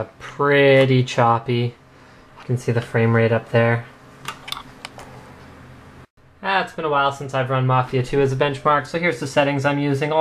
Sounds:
speech
inside a small room

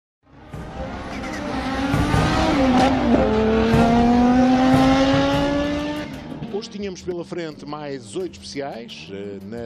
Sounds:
vehicle
music
tire squeal
speech

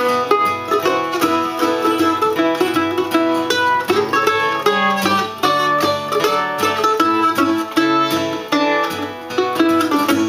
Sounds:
musical instrument
plucked string instrument
strum
guitar
music

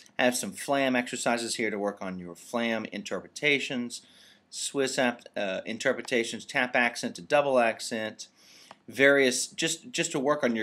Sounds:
speech

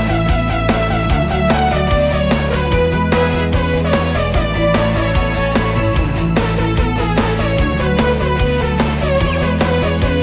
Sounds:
music

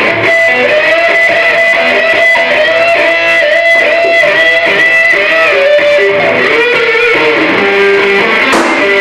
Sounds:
music

